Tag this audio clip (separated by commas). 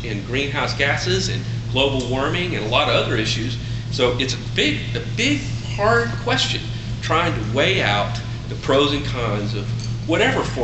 Speech, Rustling leaves